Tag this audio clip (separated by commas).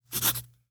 Writing, home sounds